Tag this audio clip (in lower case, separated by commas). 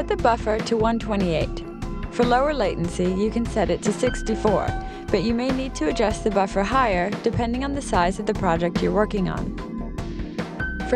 music, speech